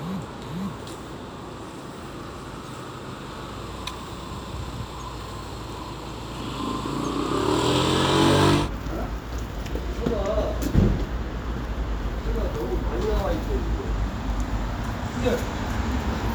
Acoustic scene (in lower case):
street